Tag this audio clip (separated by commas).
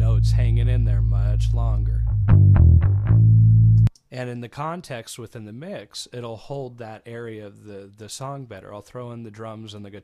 Music, Bass guitar, Guitar, Speech